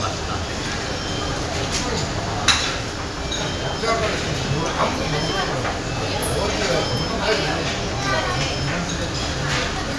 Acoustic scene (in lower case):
crowded indoor space